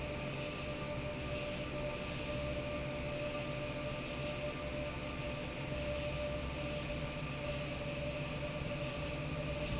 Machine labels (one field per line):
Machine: fan